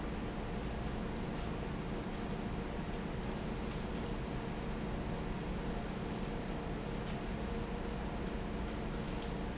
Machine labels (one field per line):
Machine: fan